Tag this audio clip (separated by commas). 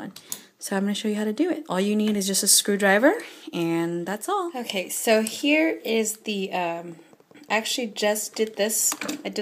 Speech